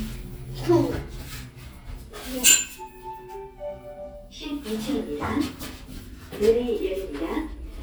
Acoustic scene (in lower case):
elevator